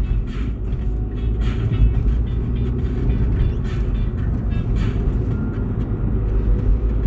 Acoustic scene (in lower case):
car